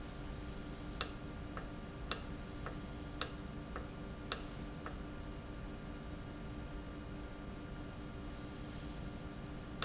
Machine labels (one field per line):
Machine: valve